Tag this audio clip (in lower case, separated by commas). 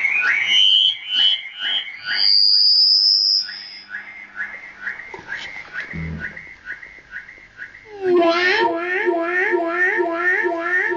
electronic music, theremin, music